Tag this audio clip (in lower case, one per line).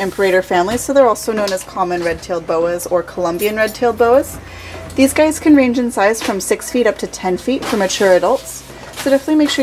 speech